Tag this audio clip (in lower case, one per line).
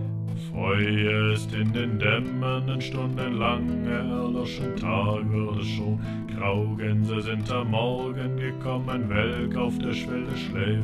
music